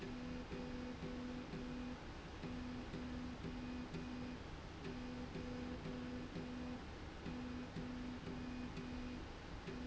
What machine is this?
slide rail